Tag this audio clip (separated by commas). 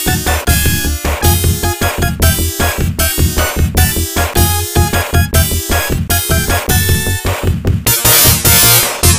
Music